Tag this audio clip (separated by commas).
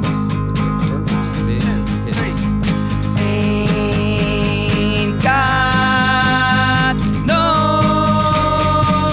Music